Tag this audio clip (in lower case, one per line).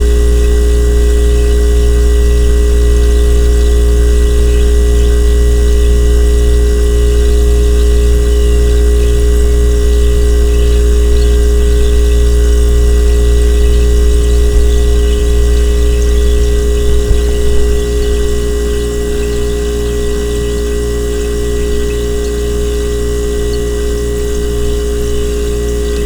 engine